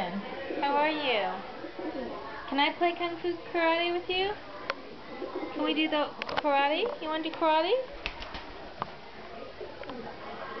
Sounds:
dove, coo, bird, bird song

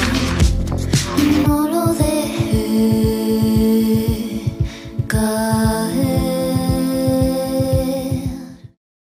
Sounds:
music

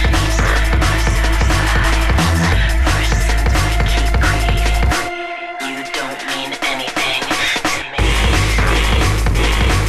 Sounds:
electronic music, drum and bass, music

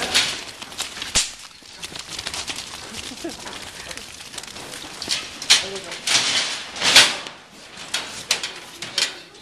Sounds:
sheep, bleat, speech

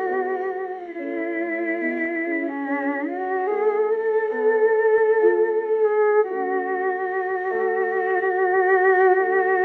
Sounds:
musical instrument, classical music, violin, music

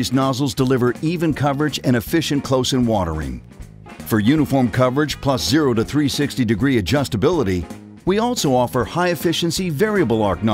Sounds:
speech, music

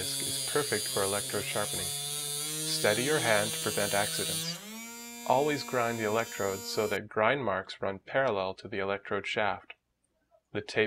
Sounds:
speech, electric razor

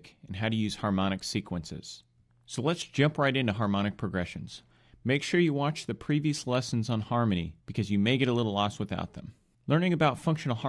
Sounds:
speech

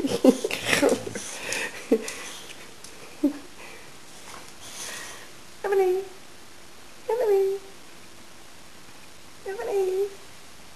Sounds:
speech

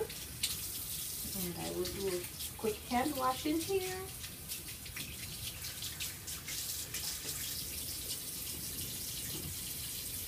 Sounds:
inside a small room, speech

